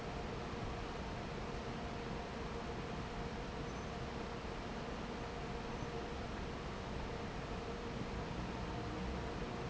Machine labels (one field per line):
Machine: fan